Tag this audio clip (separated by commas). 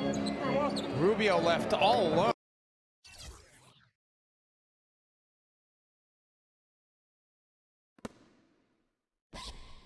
Speech, Basketball bounce